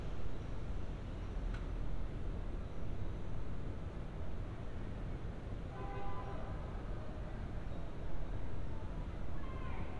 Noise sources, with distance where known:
car horn, far

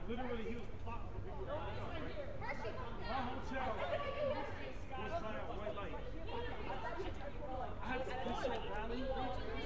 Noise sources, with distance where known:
person or small group shouting

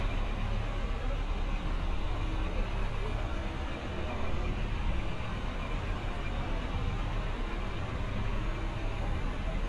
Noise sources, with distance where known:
large-sounding engine, near
unidentified human voice, far

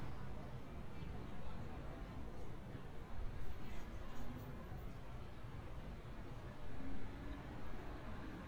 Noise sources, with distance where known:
medium-sounding engine

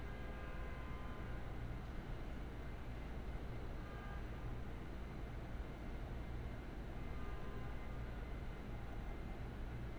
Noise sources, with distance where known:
background noise

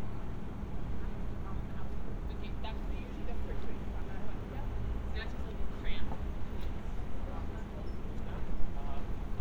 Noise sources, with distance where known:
person or small group talking

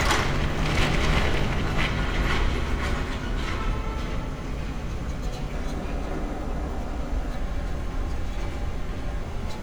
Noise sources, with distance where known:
car horn, far

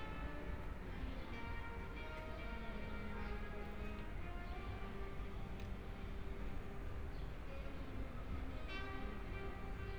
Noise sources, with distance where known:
music from an unclear source, near

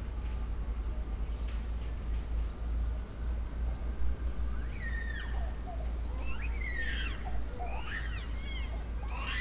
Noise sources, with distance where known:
person or small group shouting

